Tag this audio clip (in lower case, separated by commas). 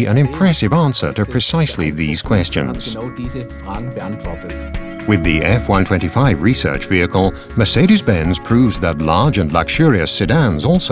music, speech